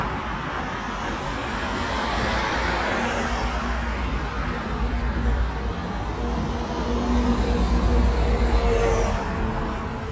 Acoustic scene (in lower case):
street